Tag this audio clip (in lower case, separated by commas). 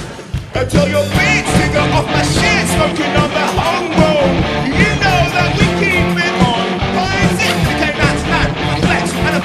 music